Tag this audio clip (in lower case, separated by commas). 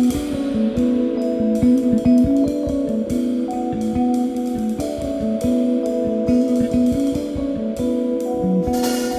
music